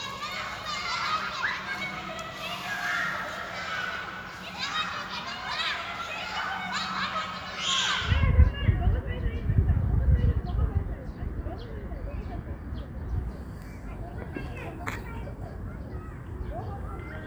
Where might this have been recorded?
in a park